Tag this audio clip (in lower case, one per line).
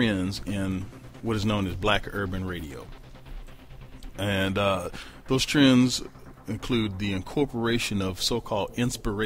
speech
music